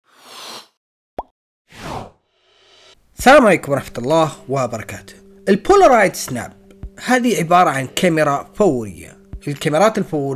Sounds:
Speech, Plop

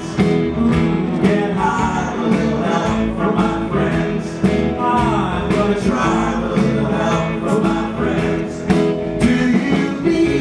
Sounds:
Male singing, Music

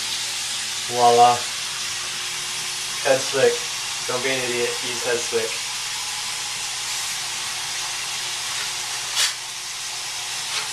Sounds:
Speech

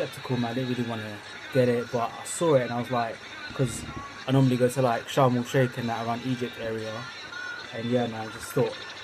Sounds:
Speech

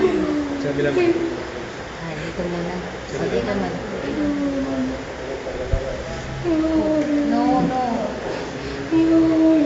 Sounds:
Speech

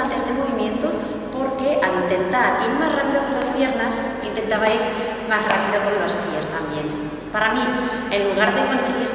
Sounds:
rope skipping

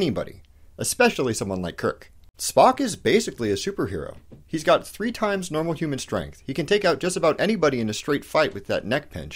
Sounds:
Speech

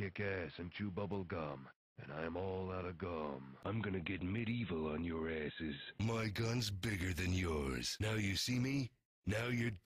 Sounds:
Speech

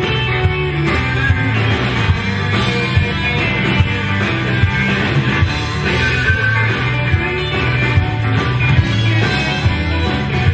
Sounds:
Music, Rock and roll, Speech, Pop music

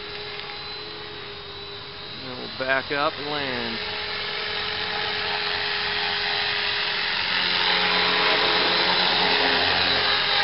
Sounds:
Helicopter, Speech

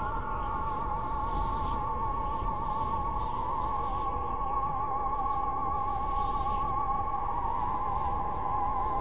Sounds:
Music

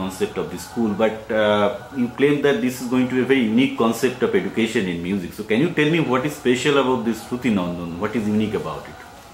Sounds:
Music, Speech

